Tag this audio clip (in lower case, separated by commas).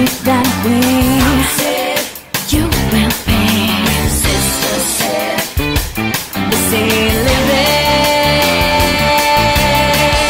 exciting music, music